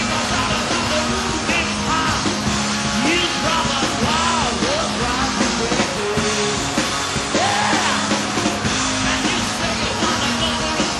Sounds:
Music, Rock and roll

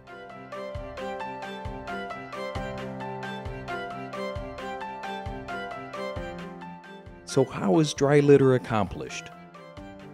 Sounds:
Speech, Music

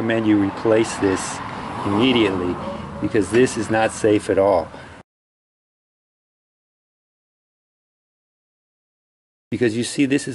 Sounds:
Speech

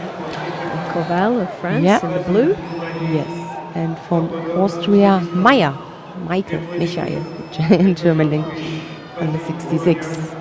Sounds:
Speech

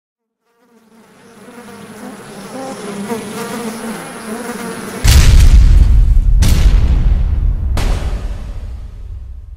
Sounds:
housefly, Insect, bee or wasp

